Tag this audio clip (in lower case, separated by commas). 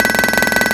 tools